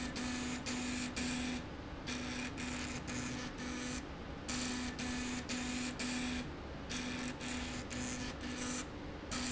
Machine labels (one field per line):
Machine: slide rail